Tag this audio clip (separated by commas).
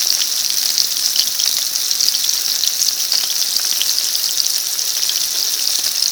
home sounds, Frying (food)